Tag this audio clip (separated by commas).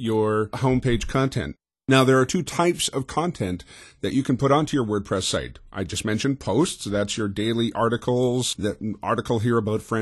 Speech